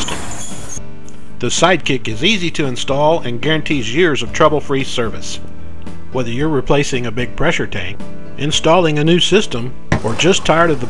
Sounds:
music, speech

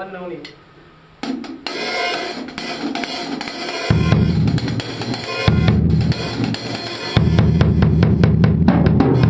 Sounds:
speech, musical instrument, bass drum, drum, rhythm and blues, drum kit, music

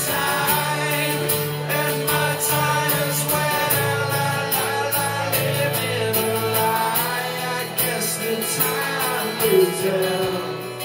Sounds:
singing, country, music, plucked string instrument, guitar

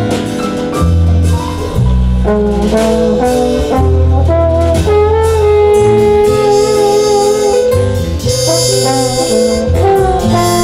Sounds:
music, jazz

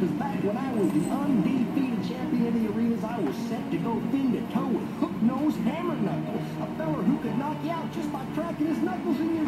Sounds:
speech, music

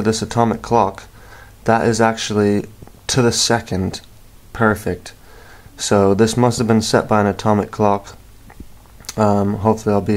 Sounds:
speech

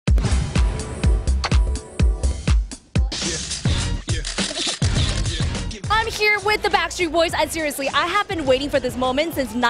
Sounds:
music

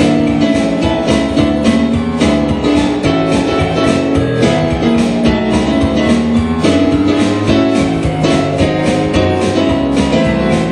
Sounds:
music

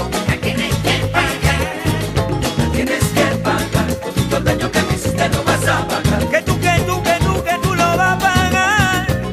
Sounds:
salsa music, flamenco, music

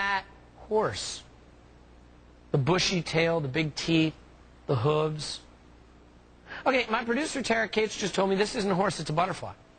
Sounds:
speech

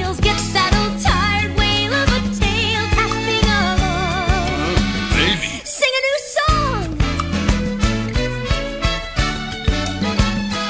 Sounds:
singing, speech, music

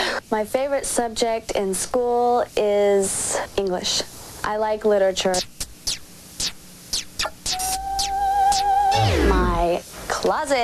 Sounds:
speech

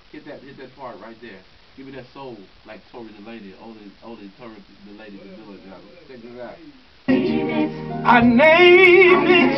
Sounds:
music, speech

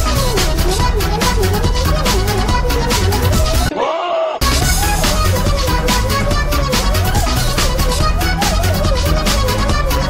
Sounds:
music, animal

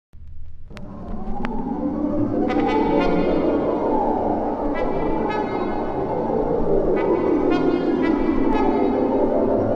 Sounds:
music, brass instrument

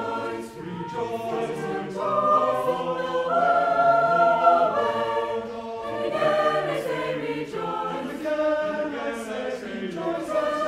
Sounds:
gospel music, music, christmas music

